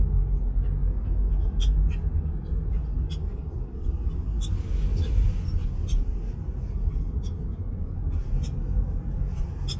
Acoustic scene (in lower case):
car